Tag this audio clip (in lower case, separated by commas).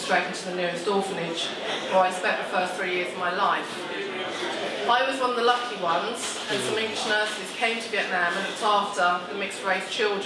female speech, speech, narration